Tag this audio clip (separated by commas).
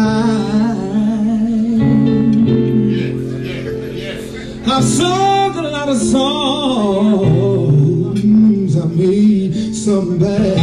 Music, Speech